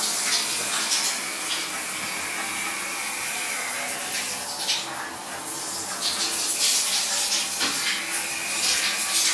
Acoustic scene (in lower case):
restroom